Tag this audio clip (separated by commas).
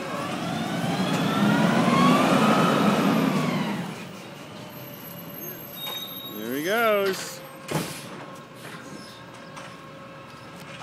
Speech, Vehicle